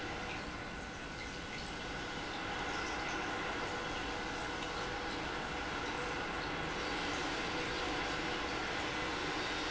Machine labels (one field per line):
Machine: pump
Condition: normal